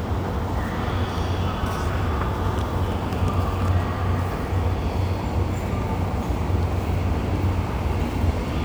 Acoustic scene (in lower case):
subway station